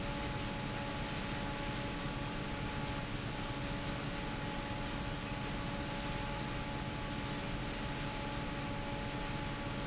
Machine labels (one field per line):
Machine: fan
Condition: normal